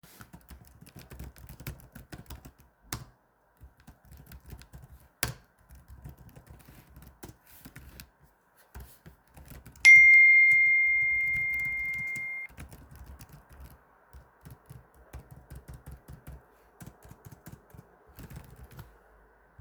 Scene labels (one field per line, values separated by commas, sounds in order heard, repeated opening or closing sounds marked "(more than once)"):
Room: office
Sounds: phone ringing